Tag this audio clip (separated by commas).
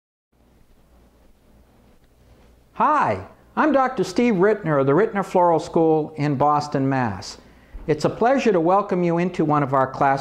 Speech